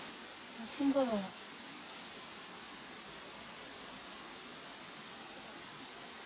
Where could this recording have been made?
in a park